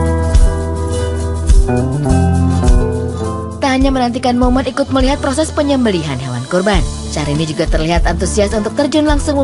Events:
[0.01, 9.43] music
[3.54, 6.83] woman speaking
[7.05, 9.43] woman speaking

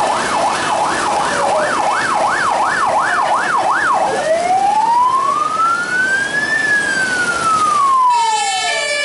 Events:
[0.00, 9.04] ambulance (siren)
[0.00, 9.04] rain
[3.03, 3.88] speech
[8.05, 9.04] fire truck (siren)

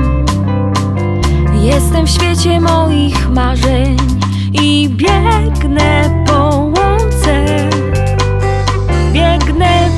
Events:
[0.00, 9.95] music
[1.45, 4.16] female singing
[4.17, 4.51] breathing
[4.50, 7.70] female singing
[5.52, 5.65] tick
[9.13, 9.95] female singing

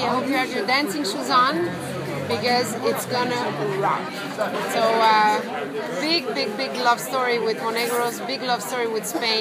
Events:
[0.00, 1.52] female speech
[0.00, 9.40] speech babble
[2.22, 2.62] female speech
[2.78, 3.43] female speech
[3.56, 3.94] female speech
[4.58, 5.41] female speech
[5.94, 6.19] female speech
[6.30, 6.46] female speech
[6.56, 8.07] female speech
[8.21, 9.40] female speech
[9.08, 9.40] cough

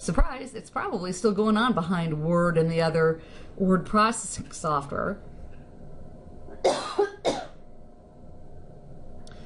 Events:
[0.00, 9.45] mechanisms
[0.07, 3.19] male speech
[3.16, 3.61] breathing
[3.56, 5.16] male speech
[5.52, 5.68] generic impact sounds
[6.66, 7.63] cough

